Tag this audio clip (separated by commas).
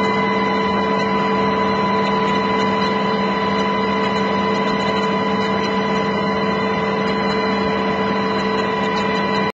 Vehicle, Aircraft